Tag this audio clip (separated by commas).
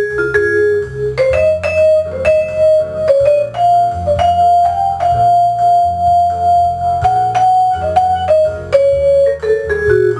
playing vibraphone, Vibraphone, Music